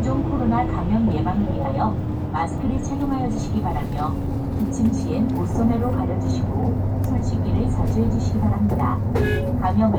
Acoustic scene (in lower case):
bus